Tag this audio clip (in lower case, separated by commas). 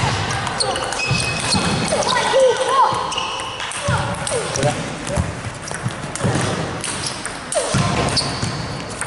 playing table tennis